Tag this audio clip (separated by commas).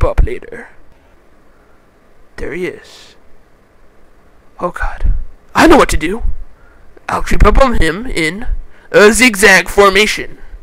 Speech